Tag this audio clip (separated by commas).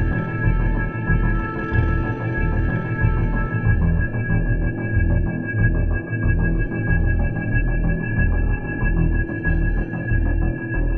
Soundtrack music, Music